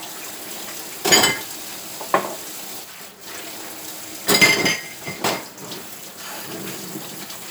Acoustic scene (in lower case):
kitchen